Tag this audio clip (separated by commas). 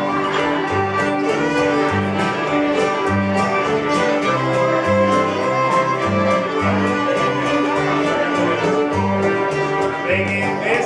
fiddle, Pizzicato, Musical instrument, Music